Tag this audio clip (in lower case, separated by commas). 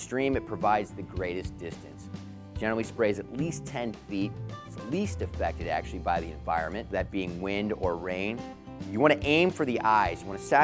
speech, music